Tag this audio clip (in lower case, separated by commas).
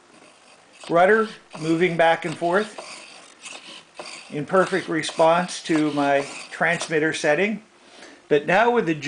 speech